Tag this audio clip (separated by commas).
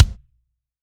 Bass drum, Musical instrument, Percussion, Drum, Music